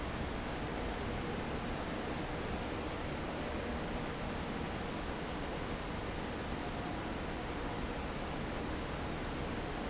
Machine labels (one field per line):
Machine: fan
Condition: abnormal